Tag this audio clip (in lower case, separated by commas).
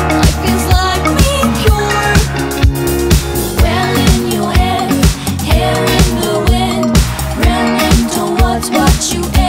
music